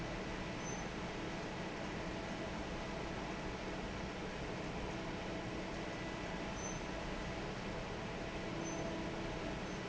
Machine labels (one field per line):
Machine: fan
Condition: normal